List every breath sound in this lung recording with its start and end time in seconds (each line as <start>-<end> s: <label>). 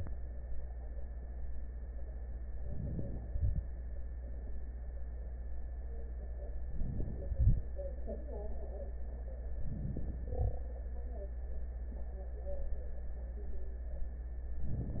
2.59-3.26 s: inhalation
2.59-3.26 s: crackles
3.27-3.65 s: exhalation
6.64-7.33 s: inhalation
6.64-7.33 s: crackles
7.34-7.68 s: exhalation
9.60-10.29 s: inhalation
9.60-10.29 s: crackles
10.31-10.70 s: exhalation
14.63-15.00 s: inhalation
14.63-15.00 s: crackles